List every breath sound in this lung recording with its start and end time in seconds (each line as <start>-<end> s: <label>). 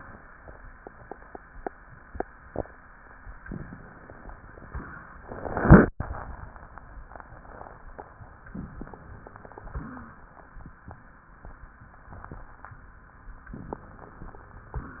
8.51-9.56 s: inhalation
8.51-9.56 s: crackles
9.64-10.18 s: wheeze
9.64-10.74 s: exhalation
13.53-14.72 s: inhalation
13.53-14.73 s: crackles
14.74-15.00 s: exhalation